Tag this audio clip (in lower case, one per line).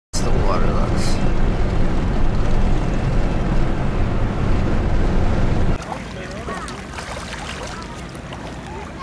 animal
outside, rural or natural
speech